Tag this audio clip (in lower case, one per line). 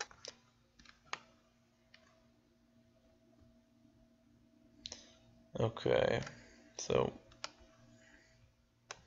clicking
speech